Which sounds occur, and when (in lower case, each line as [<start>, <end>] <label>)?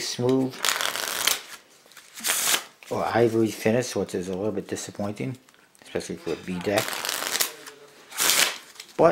[0.00, 9.11] background noise
[4.65, 5.29] shuffling cards
[6.58, 6.72] generic impact sounds
[8.44, 8.64] surface contact
[8.57, 9.11] breathing